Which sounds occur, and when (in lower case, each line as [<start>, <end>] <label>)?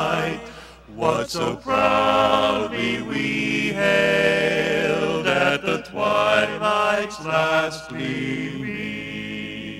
[0.49, 0.79] breathing
[0.96, 9.75] male singing
[7.81, 7.99] tick